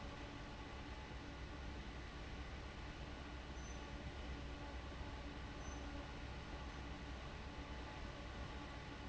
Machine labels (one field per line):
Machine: fan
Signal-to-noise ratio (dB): 6 dB